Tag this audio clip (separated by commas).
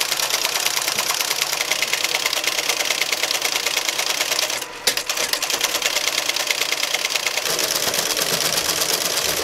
typing on typewriter, Typewriter